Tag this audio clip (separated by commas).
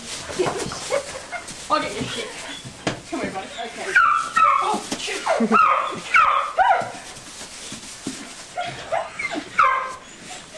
Sheep, Speech